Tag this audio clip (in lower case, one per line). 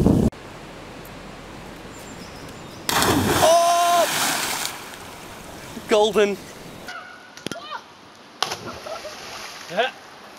speech